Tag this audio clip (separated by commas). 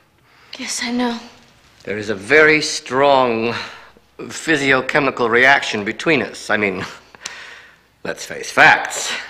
Speech, inside a small room